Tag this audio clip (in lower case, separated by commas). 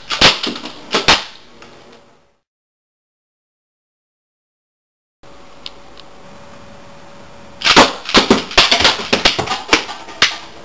machine gun shooting